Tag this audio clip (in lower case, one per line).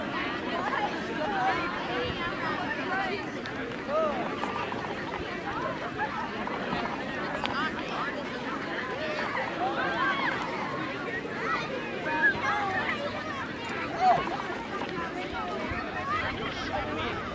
human group actions